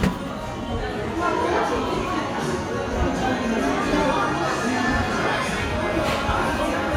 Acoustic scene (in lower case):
crowded indoor space